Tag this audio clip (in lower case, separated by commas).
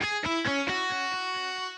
guitar, plucked string instrument, music, electric guitar, musical instrument